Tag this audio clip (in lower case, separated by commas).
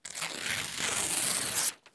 tearing